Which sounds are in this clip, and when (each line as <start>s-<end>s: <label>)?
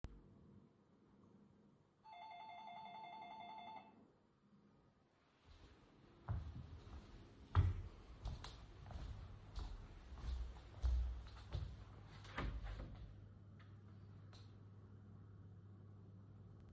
2.1s-3.9s: bell ringing
6.3s-11.9s: footsteps
12.2s-12.9s: door